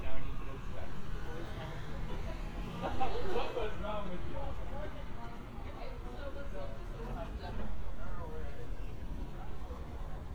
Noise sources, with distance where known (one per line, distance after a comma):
person or small group talking, near